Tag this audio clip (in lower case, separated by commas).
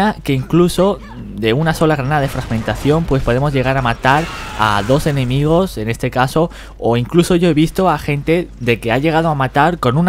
speech